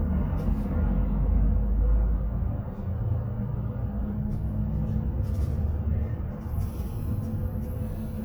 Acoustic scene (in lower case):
bus